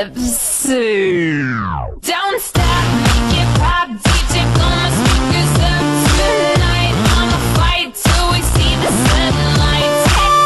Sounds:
Music

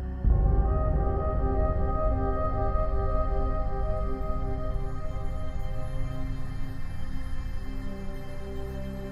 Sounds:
Music

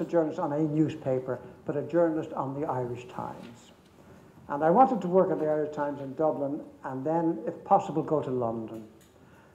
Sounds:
Speech

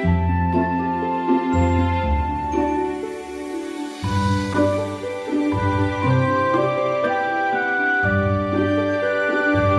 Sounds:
Music, Soul music

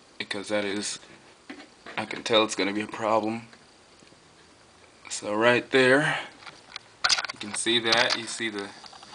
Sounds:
Speech

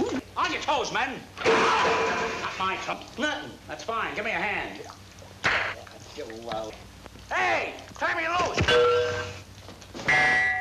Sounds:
Speech

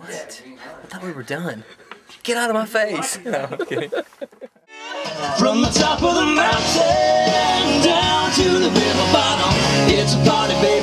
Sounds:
Speech, Music

